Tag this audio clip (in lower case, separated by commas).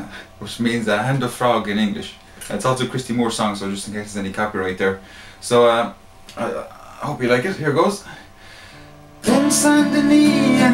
speech, music